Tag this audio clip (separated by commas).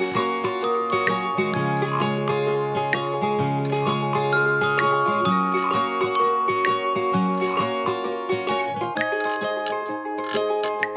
Music